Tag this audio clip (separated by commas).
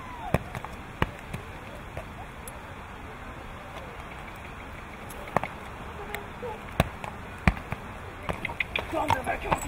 Speech